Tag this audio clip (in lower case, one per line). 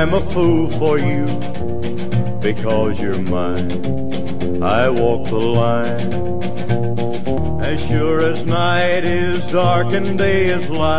music